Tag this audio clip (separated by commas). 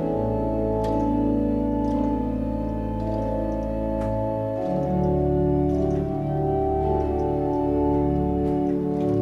Music